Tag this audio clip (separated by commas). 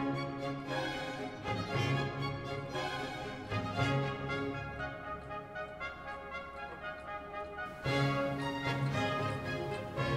Music